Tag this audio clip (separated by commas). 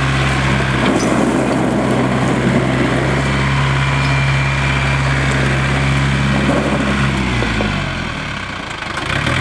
Vehicle, outside, rural or natural